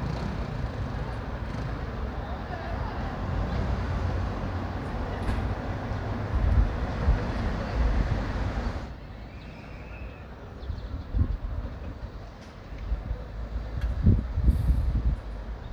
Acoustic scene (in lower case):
street